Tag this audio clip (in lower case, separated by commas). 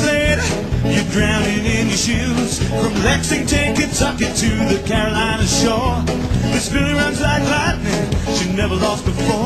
music